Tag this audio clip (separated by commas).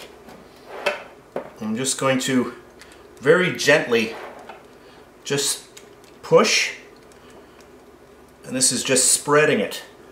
Speech, inside a small room